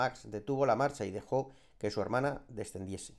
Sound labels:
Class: speech